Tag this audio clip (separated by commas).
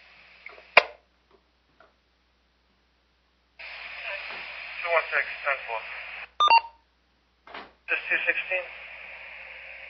Speech